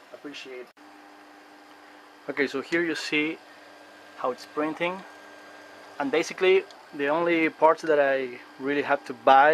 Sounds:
Speech, Printer

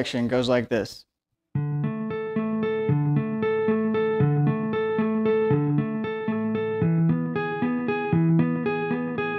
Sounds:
tapping guitar

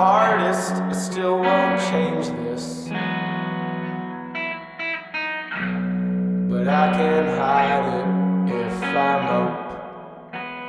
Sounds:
Music, Effects unit

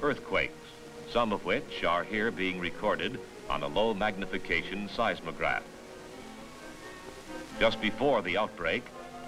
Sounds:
Speech

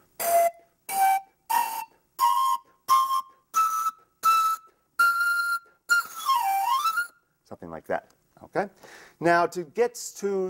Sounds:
Musical instrument, Music, Speech, Wind instrument

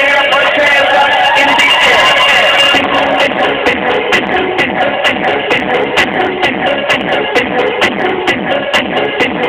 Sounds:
Music

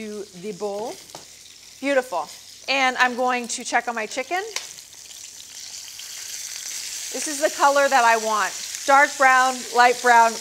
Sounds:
inside a small room, Frying (food), Speech

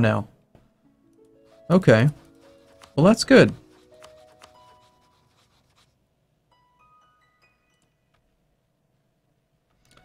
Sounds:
Speech, Music

